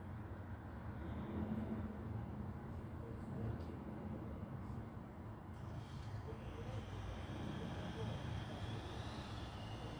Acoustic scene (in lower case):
residential area